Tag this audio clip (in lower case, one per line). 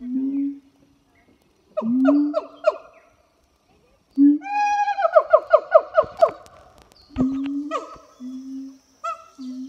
gibbon howling